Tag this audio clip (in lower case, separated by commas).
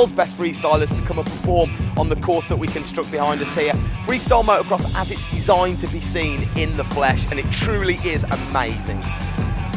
music, speech